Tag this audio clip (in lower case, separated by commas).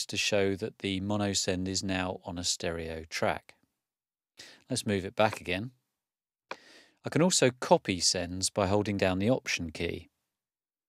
speech